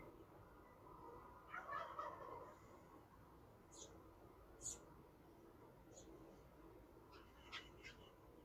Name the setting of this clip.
park